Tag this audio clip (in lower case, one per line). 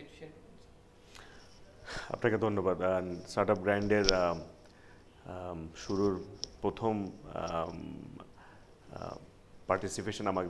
speech